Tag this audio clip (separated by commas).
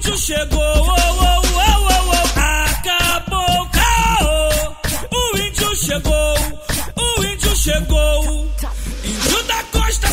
Music